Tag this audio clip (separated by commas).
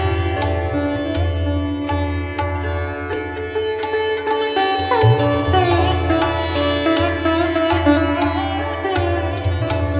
Sitar, Music